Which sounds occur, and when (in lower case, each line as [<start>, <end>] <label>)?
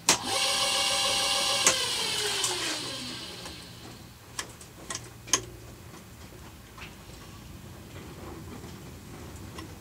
[0.00, 9.80] mechanisms
[0.04, 3.63] power tool
[0.05, 0.17] generic impact sounds
[1.61, 1.70] generic impact sounds
[2.39, 2.48] generic impact sounds
[3.38, 3.50] generic impact sounds
[3.76, 3.92] generic impact sounds
[4.32, 4.41] tick
[4.56, 4.65] generic impact sounds
[4.84, 4.98] generic impact sounds
[5.28, 5.37] tick
[5.87, 5.99] generic impact sounds
[6.16, 6.49] generic impact sounds
[6.74, 6.91] generic impact sounds
[7.02, 7.46] surface contact
[7.88, 7.99] generic impact sounds
[8.14, 8.51] surface contact
[8.20, 8.31] generic impact sounds
[8.51, 8.79] generic impact sounds
[9.33, 9.66] generic impact sounds